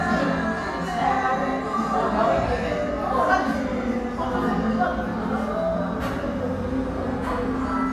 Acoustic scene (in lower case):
crowded indoor space